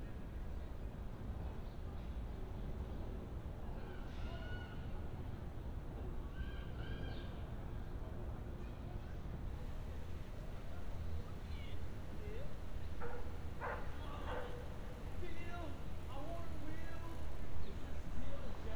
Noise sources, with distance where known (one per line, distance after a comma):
person or small group shouting